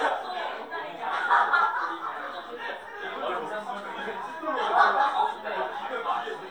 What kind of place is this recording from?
crowded indoor space